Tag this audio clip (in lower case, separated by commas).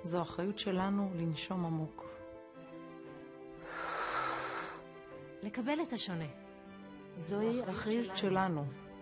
speech